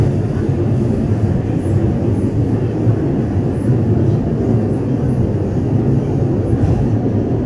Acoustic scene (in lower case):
subway train